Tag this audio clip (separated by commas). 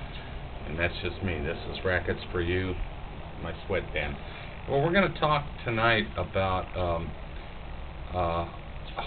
Speech